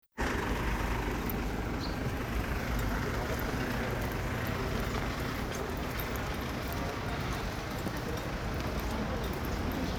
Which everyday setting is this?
residential area